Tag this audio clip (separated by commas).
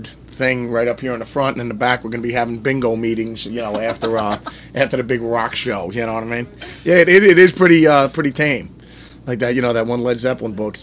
Speech